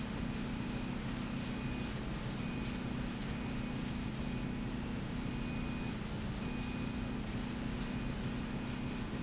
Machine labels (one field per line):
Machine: slide rail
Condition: normal